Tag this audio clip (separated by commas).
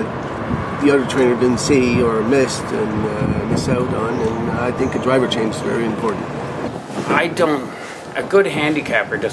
outside, urban or man-made, Speech